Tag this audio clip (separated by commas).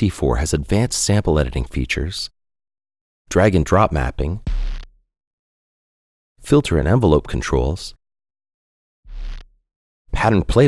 Speech